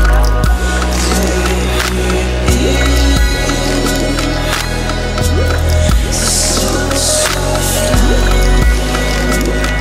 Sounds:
Background music, Music

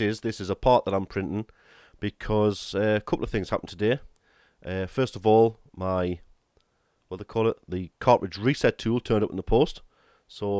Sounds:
Speech

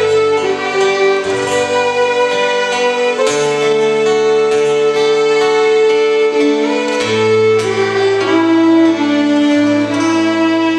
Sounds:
Music, Musical instrument, Violin

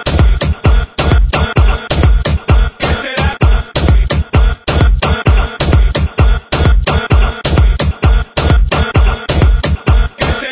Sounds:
Music, Dance music

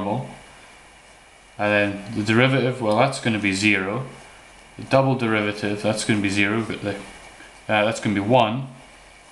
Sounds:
inside a small room, Speech

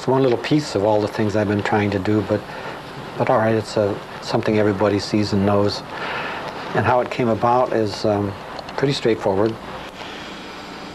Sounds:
Speech

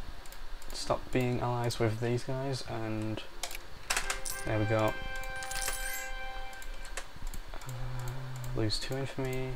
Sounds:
Music, Speech

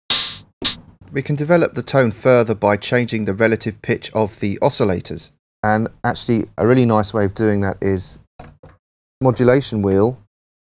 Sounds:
Speech, Musical instrument, Synthesizer

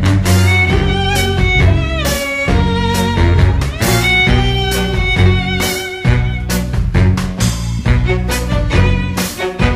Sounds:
Music

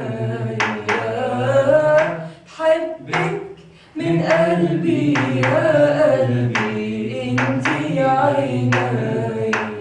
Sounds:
Female singing, Male singing, Choir

